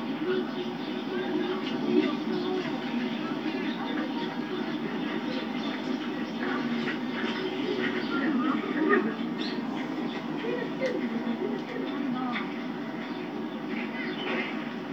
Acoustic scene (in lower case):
park